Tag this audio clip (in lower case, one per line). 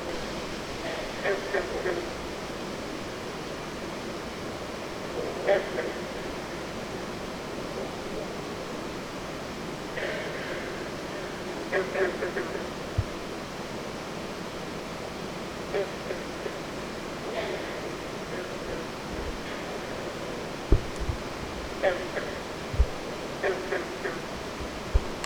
wild animals
frog
animal